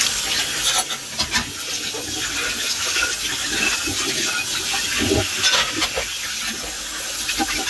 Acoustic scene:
kitchen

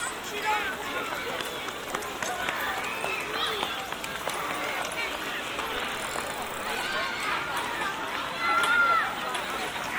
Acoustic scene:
park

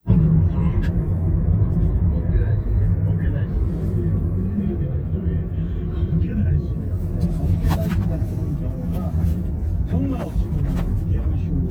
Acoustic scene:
car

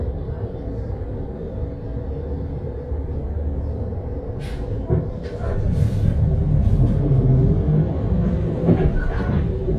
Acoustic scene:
bus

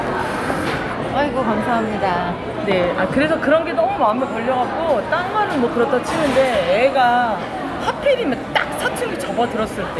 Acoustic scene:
crowded indoor space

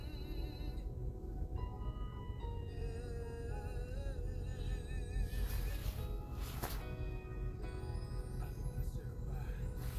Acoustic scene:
car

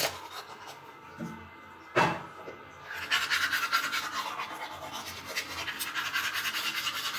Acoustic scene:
restroom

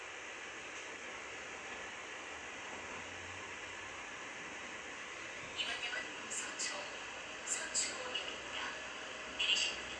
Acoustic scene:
subway train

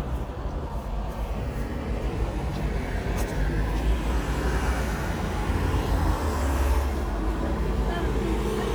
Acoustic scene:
street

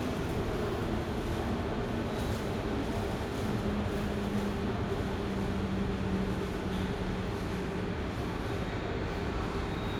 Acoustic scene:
subway station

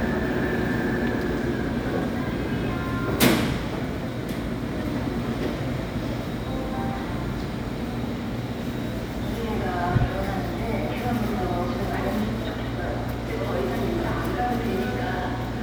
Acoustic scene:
subway station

